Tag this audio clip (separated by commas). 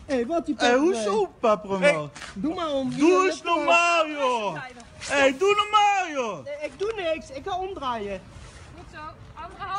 Speech